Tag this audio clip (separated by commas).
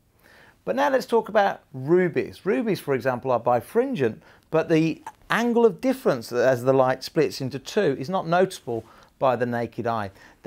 Speech